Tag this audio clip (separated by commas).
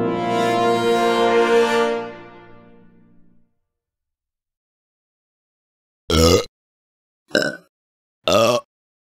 people burping